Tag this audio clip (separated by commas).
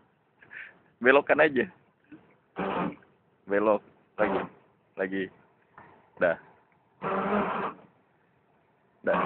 Speech